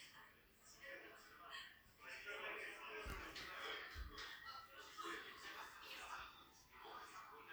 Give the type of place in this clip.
crowded indoor space